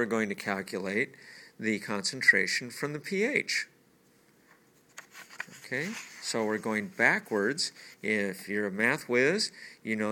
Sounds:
Writing, Speech, inside a small room

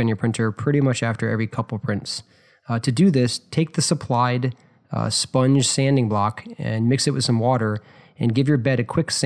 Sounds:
Speech

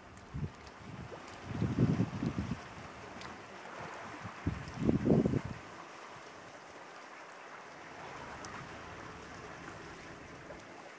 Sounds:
outside, rural or natural, Ocean

